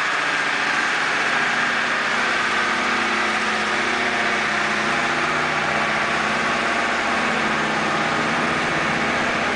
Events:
0.0s-9.5s: heavy engine (low frequency)

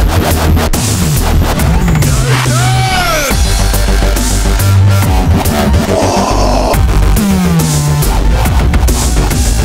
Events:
0.0s-9.6s: music
2.0s-3.4s: shout
5.9s-6.9s: human sounds

